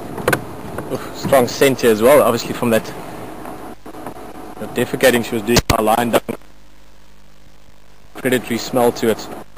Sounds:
speech

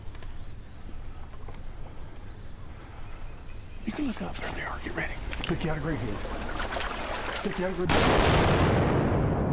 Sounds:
gunfire

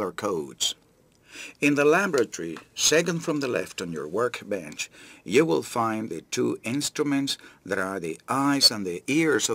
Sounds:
speech synthesizer, speech, narration

